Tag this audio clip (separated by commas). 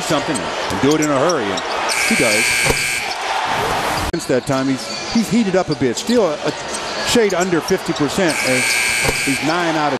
Speech